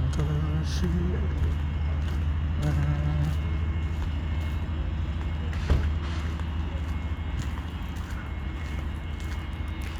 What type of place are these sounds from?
park